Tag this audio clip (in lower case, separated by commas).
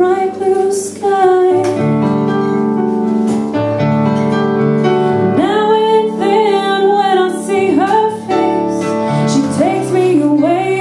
musical instrument, singing